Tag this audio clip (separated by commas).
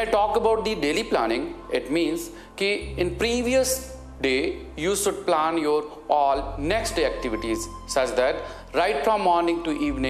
Music, Speech